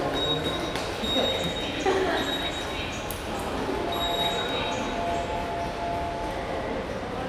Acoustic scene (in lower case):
subway station